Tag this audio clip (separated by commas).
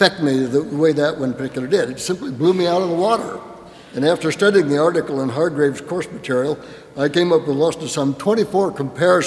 Speech